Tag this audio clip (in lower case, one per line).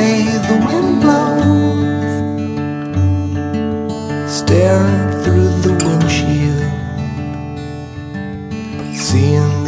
music